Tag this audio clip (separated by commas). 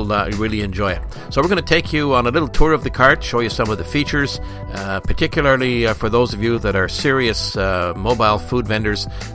Music, Speech